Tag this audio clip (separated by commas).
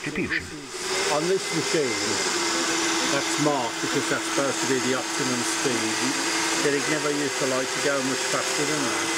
Speech